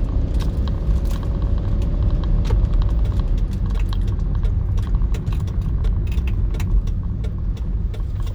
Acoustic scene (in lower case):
car